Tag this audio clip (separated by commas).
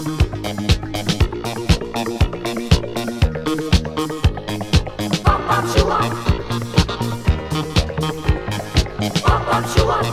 Music, Drum kit, Musical instrument